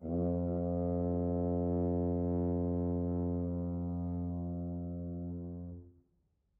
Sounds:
Music, Brass instrument, Musical instrument

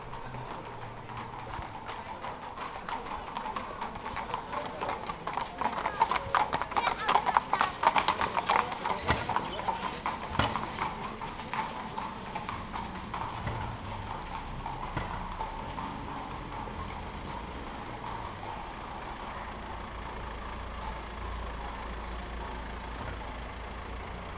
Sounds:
Animal, livestock

